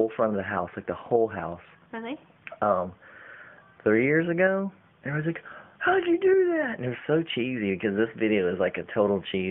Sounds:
Conversation

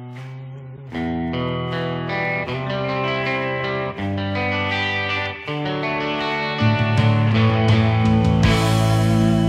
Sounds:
Musical instrument, Guitar, Music, Electric guitar

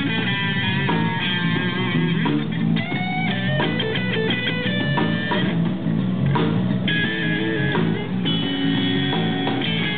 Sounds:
Musical instrument, Guitar, Bass guitar, Music, Plucked string instrument

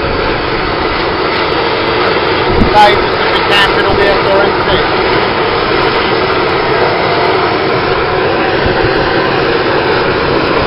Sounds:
Vehicle, Boat, Speech

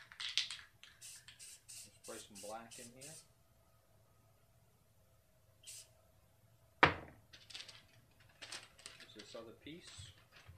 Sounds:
Speech, inside a small room

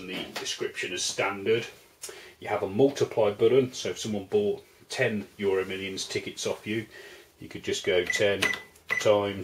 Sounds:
Cash register, Speech

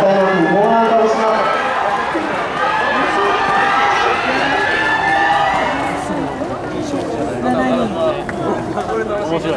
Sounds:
Run, Speech, Male speech

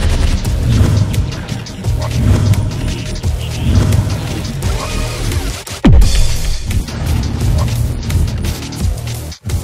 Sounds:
Music

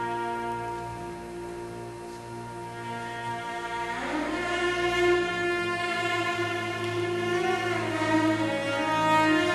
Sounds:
playing cello

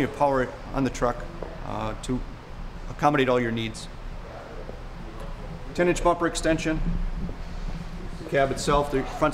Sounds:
Speech

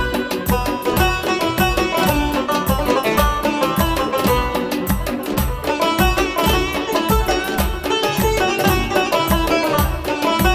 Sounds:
Music

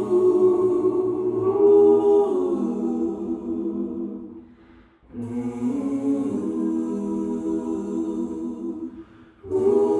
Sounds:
Music

